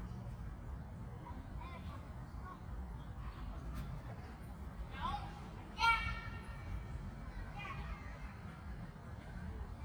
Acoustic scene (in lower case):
park